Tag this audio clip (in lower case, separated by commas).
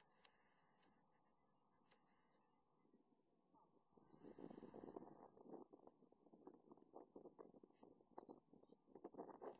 silence